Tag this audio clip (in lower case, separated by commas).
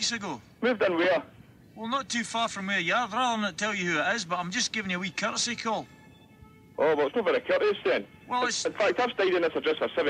speech